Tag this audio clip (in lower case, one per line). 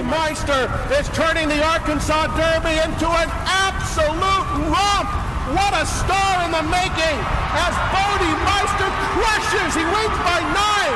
speech
clip-clop